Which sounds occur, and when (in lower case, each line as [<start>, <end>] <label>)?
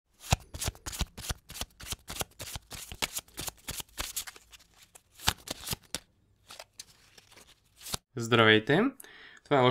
[7.78, 7.96] shuffling cards
[9.01, 9.43] breathing